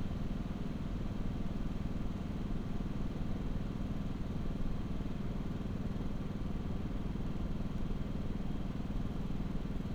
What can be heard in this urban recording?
engine of unclear size